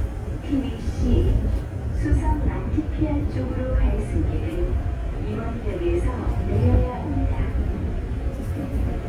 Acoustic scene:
subway train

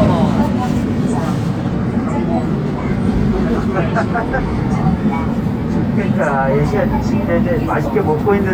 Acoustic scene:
subway train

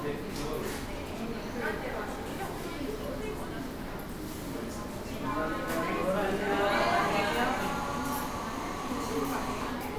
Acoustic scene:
cafe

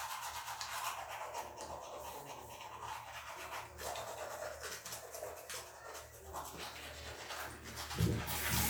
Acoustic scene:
restroom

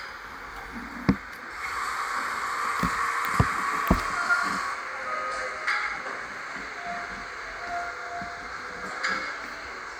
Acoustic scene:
cafe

